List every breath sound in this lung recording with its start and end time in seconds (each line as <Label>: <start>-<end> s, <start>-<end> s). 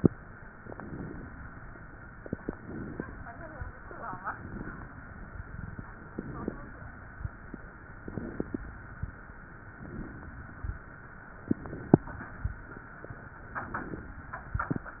Inhalation: 0.61-1.39 s, 2.58-3.36 s, 4.17-4.95 s, 6.03-6.81 s, 7.97-8.75 s, 9.75-10.53 s, 11.50-12.28 s, 13.49-14.27 s
Crackles: 0.61-1.39 s, 2.58-3.36 s, 4.17-4.95 s, 6.03-6.81 s, 7.97-8.75 s, 9.75-10.53 s, 11.50-12.28 s, 13.49-14.27 s